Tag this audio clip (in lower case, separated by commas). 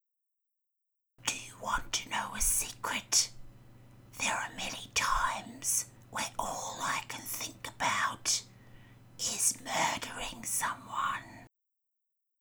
whispering, human voice